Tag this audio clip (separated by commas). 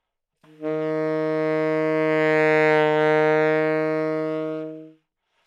Musical instrument, Wind instrument, Music